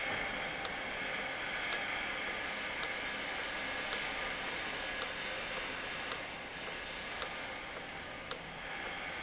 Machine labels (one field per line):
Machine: valve